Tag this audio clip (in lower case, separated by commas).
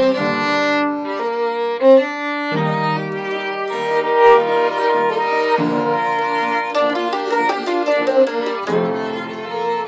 violin, bowed string instrument